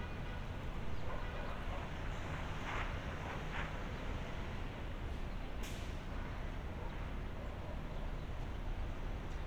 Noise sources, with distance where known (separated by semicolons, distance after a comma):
car horn, far